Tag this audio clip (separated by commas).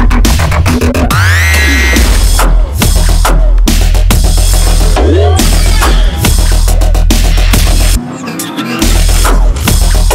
Music